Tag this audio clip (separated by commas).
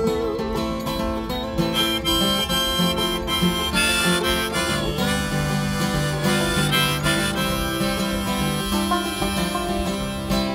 Music, Harmonica